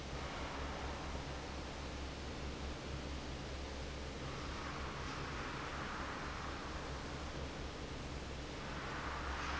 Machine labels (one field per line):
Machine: fan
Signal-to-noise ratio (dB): 0 dB